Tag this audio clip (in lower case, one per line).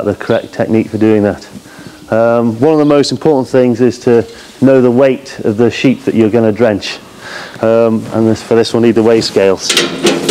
speech